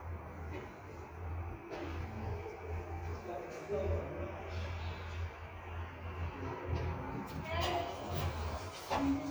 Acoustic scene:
elevator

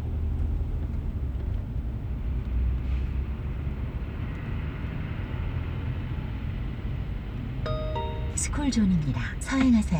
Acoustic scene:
car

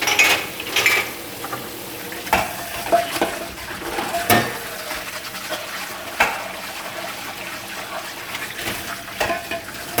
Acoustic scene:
kitchen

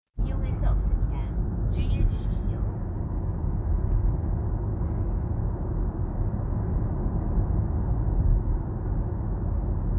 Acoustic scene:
car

